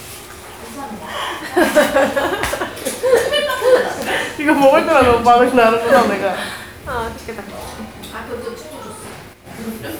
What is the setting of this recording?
crowded indoor space